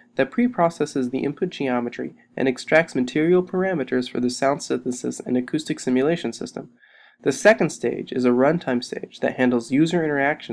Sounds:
Speech

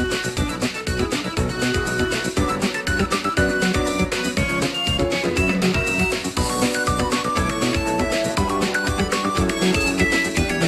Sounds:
Theme music, Music

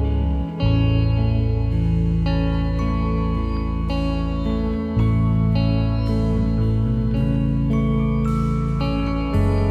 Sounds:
Music

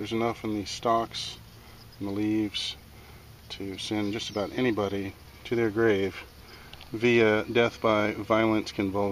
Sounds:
Speech

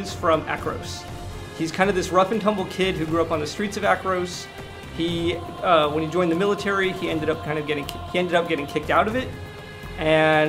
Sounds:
Speech, Music

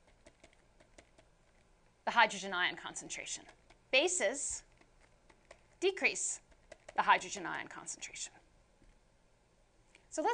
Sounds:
Speech

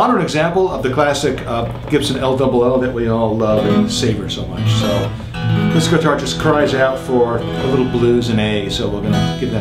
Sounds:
Musical instrument, Speech, Music, Strum, Guitar

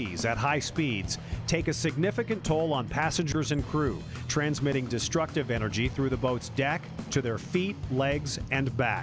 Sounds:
Speech, Music

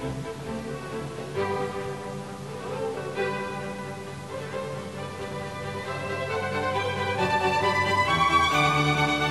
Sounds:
Music

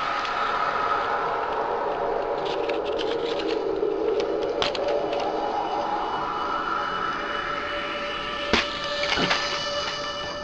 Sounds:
Crackle, Music

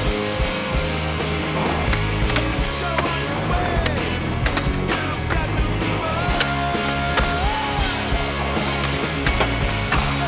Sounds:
Skateboard

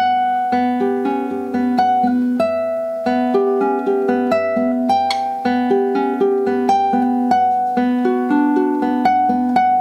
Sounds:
Plucked string instrument, Music, Strum, Acoustic guitar, Musical instrument, Guitar

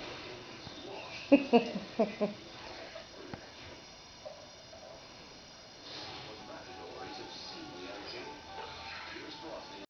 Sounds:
Speech, Music

